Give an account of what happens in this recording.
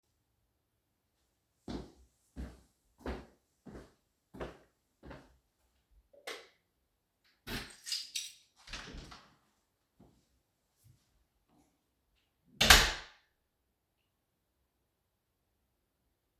walking to the door,turning off the light,holding the key chain,opening the door,closing the door